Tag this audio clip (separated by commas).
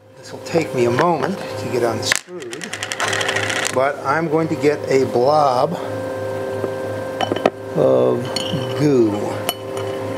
Speech